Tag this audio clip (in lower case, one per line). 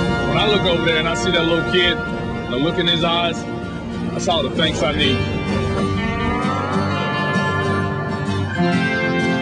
airplane